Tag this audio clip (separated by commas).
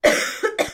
Respiratory sounds, Cough